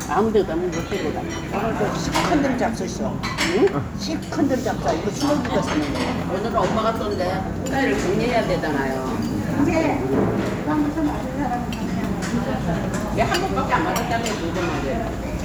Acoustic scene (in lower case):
restaurant